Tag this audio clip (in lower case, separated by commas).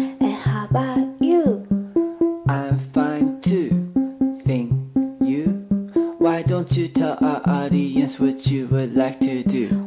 music